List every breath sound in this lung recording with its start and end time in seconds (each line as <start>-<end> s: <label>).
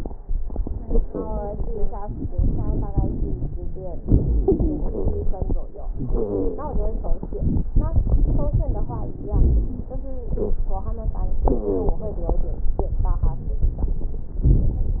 0.84-1.58 s: wheeze
2.03-2.92 s: inhalation
2.03-2.92 s: crackles
2.92-4.04 s: wheeze
4.05-5.73 s: inhalation
4.38-5.28 s: wheeze
5.74-7.23 s: exhalation
5.96-7.19 s: wheeze
7.21-9.16 s: inhalation
7.21-9.16 s: crackles
9.14-9.92 s: exhalation
9.18-9.92 s: crackles
9.94-10.84 s: inhalation
10.31-10.59 s: wheeze
11.49-12.01 s: wheeze
14.46-14.98 s: inhalation
14.46-14.98 s: crackles